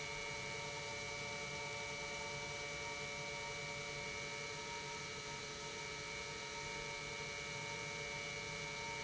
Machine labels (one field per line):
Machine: pump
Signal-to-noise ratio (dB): 6 dB